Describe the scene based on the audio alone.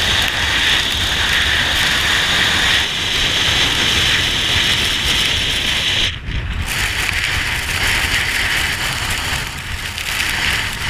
Wind blows by loudly nearby, followed by water flowing out of a faucet nearby